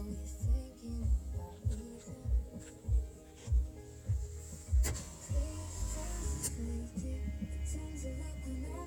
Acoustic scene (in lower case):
car